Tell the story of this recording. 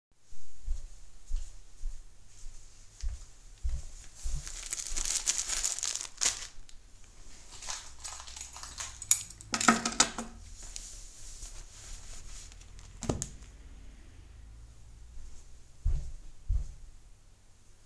I walked towards a table, where my phone was placed and pulled out a tissue pack, my keys and my wallet from my pants. I placed them next to my phone and walked away.